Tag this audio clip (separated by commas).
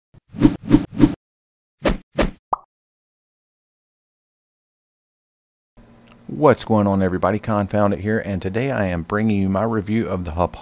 Speech